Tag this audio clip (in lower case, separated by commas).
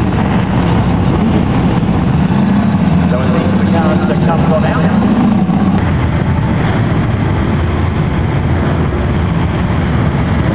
car, auto racing, speech, vehicle